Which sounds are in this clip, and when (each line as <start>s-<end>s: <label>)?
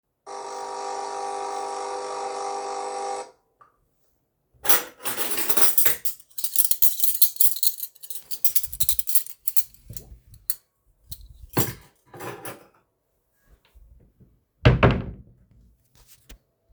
0.2s-3.3s: coffee machine
4.6s-12.6s: cutlery and dishes
14.6s-15.3s: wardrobe or drawer